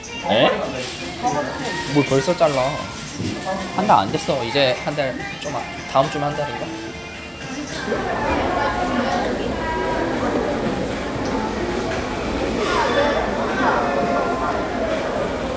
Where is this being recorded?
in a restaurant